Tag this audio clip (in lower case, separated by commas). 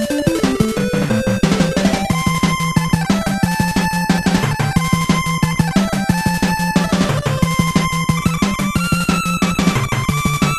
music